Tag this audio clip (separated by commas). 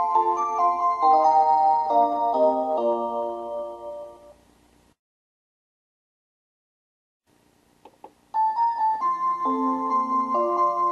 Tick-tock, Tick